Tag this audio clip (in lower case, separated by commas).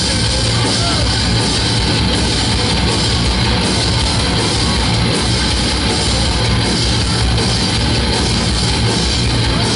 music